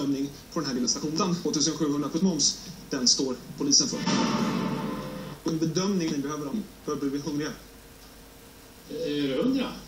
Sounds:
speech

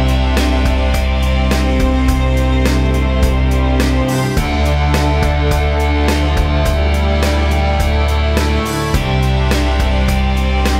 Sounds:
music

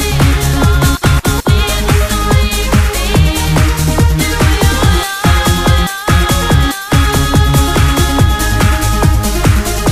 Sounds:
music, techno

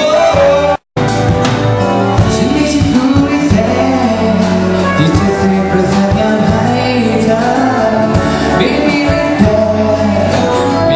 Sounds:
tender music, music

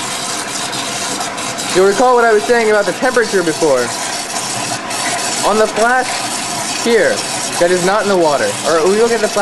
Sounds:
speech

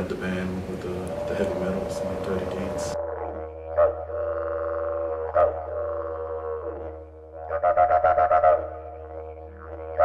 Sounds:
playing didgeridoo

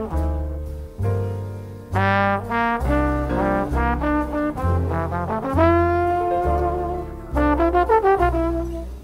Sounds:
playing trombone

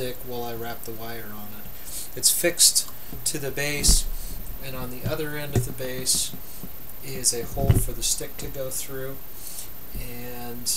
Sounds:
speech

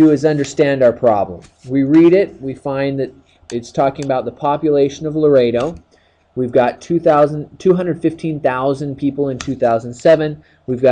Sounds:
speech

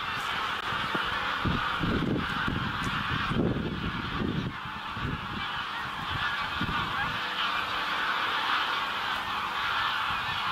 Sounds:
goose, fowl, honk

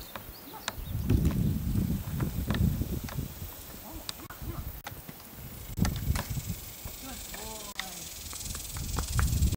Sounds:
speech, clip-clop

